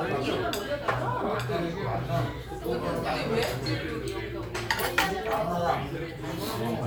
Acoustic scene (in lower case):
crowded indoor space